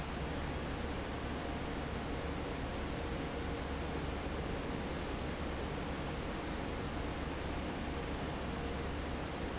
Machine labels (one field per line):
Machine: fan